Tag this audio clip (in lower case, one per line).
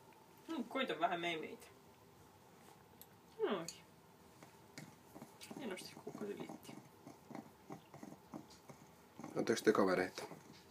speech